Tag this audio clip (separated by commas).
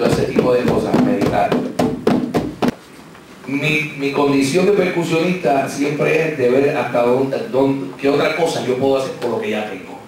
Percussion, Music, Speech, Musical instrument